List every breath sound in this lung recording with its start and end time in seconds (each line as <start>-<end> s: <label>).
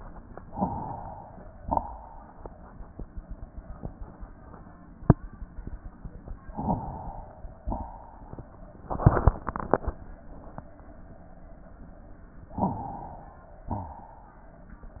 0.47-1.61 s: inhalation
0.47-1.61 s: crackles
1.65-2.62 s: exhalation
1.65-2.62 s: rhonchi
6.47-7.61 s: inhalation
6.47-7.61 s: crackles
7.68-8.10 s: rhonchi
7.68-8.65 s: exhalation
12.52-13.66 s: inhalation
12.52-13.66 s: crackles
13.72-14.14 s: rhonchi
13.72-14.86 s: exhalation